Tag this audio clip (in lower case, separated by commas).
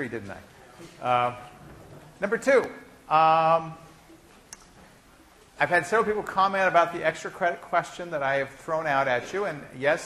speech